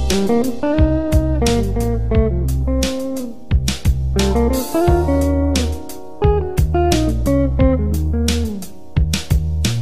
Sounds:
music

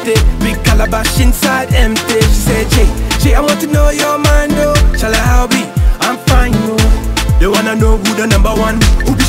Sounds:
music

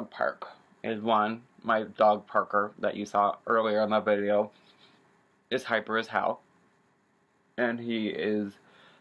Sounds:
inside a small room, speech

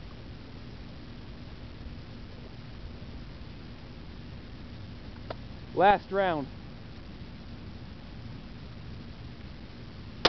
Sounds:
speech, outside, rural or natural

